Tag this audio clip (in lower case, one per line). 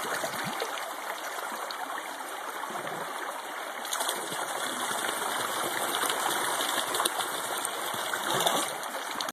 water